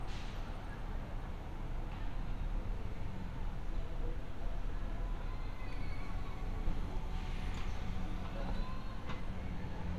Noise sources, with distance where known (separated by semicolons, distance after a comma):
background noise